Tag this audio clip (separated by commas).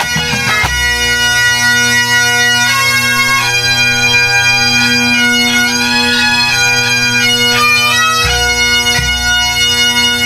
woodwind instrument, Bagpipes, playing bagpipes